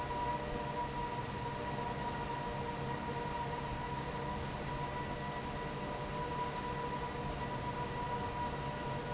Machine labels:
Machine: fan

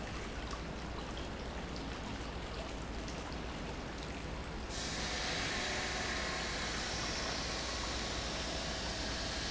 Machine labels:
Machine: pump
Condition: normal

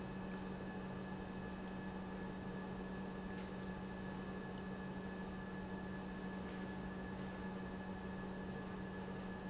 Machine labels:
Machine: pump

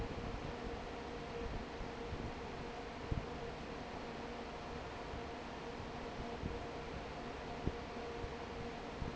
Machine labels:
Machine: fan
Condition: normal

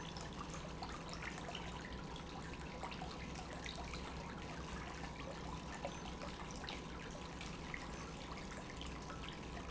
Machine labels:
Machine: pump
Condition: normal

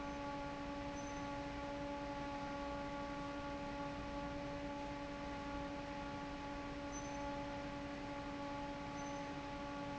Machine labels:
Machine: fan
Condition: normal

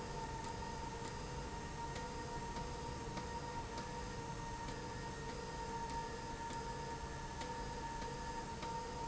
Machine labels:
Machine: slide rail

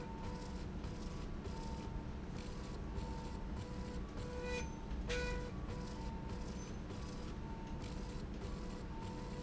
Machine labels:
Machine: slide rail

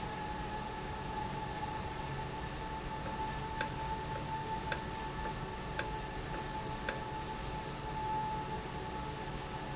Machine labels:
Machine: valve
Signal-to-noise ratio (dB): -6 dB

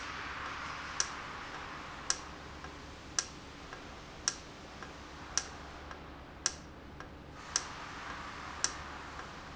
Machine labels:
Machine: valve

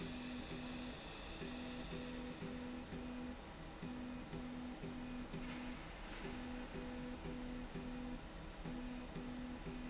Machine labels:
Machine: slide rail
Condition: normal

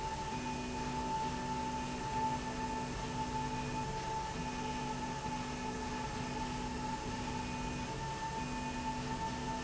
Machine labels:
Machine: slide rail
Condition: normal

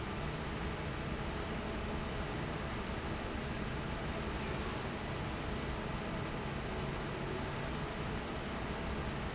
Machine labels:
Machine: fan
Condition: normal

